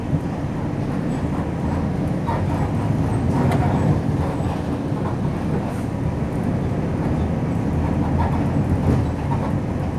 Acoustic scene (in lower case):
bus